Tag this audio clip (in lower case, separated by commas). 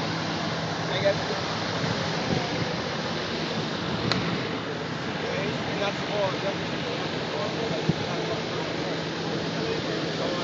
speech, bus